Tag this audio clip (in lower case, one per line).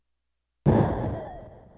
explosion